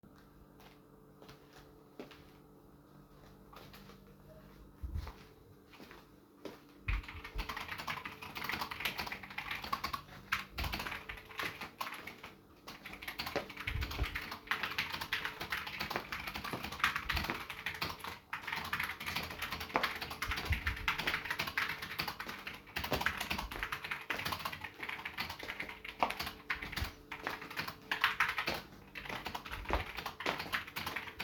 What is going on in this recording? One person types while another person walks around the room with the microphone